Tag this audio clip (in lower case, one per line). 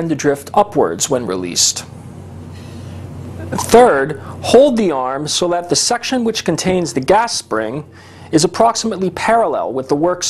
speech